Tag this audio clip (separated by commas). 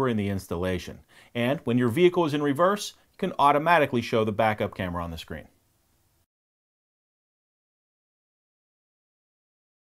Speech